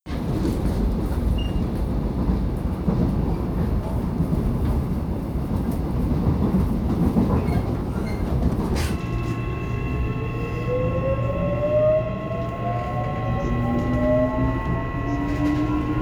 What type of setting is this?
subway train